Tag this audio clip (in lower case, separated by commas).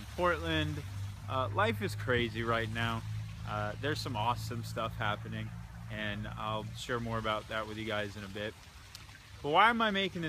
speech